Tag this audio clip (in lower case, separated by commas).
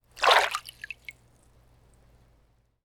splash, liquid